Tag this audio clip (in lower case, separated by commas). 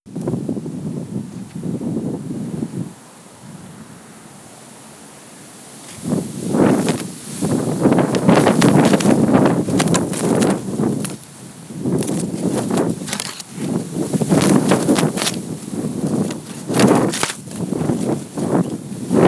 wind